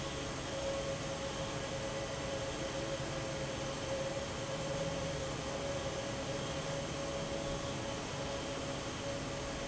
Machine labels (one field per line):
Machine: fan